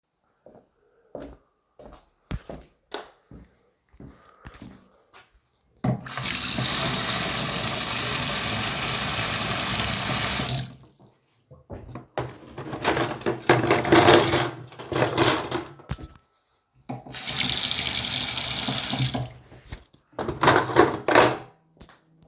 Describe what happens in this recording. I walked to the sink, turned on the light and water and sorted the cutlery